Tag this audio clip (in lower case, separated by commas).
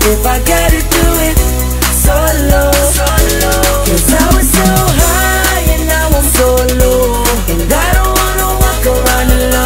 music, rhythm and blues